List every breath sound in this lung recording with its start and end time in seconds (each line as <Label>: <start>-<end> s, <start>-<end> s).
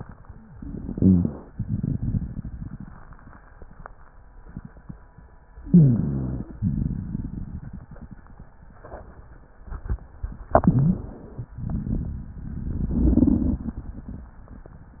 Inhalation: 0.51-1.46 s, 5.60-6.51 s, 10.57-11.48 s
Rhonchi: 0.85-1.35 s, 5.60-6.51 s, 10.57-11.20 s
Crackles: 1.56-3.42 s, 6.62-8.48 s, 11.61-14.31 s